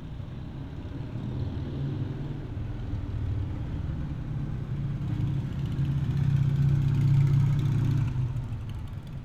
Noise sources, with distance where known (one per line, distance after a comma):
medium-sounding engine, near